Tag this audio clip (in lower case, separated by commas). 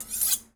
domestic sounds, cutlery